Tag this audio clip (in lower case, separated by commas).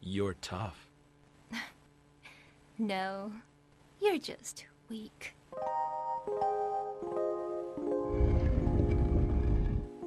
speech, music